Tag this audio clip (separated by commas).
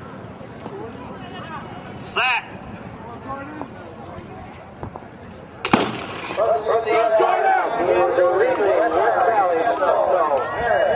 Run, outside, urban or man-made, Speech